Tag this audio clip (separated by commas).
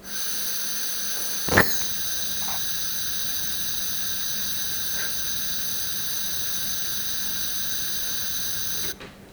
Fire